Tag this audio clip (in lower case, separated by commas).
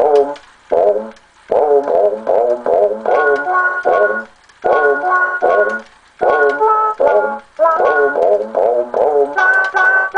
music